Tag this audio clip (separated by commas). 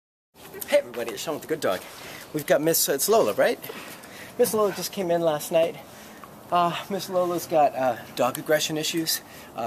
outside, urban or man-made, Speech